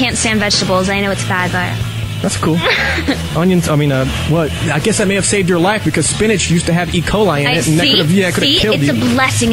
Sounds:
speech
radio

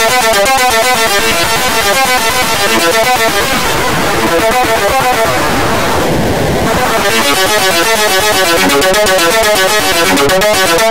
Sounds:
sound effect
music

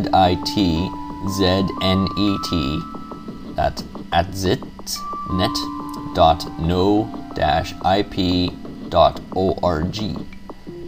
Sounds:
music
speech

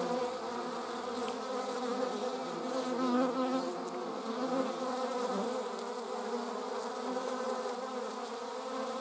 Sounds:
bee

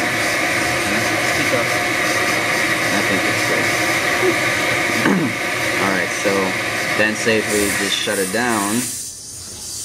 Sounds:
rattle

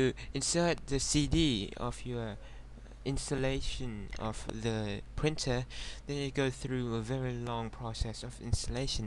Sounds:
speech

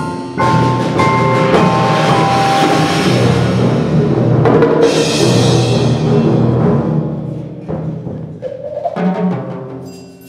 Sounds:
percussion
music
musical instrument
timpani

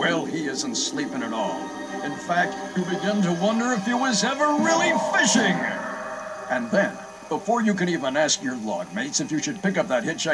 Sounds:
speech
music

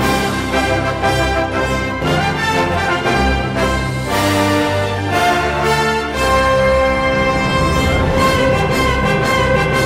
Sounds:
music

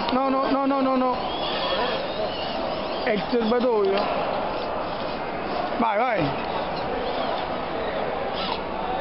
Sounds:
speech

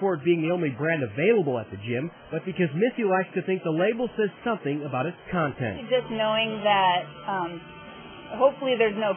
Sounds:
speech

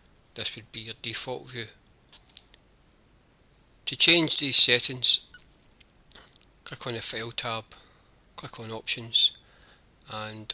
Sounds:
speech

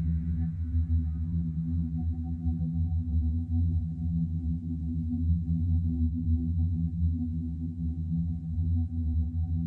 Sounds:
music

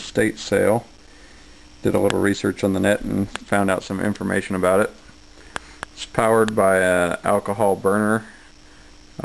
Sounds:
speech

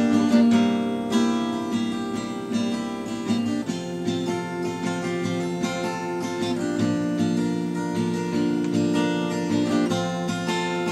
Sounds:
plucked string instrument
strum
music
guitar
musical instrument

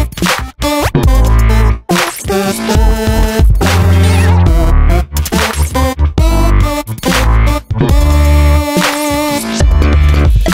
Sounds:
music

